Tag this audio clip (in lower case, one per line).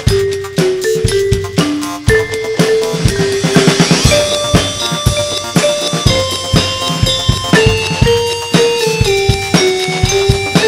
exciting music
music
dance music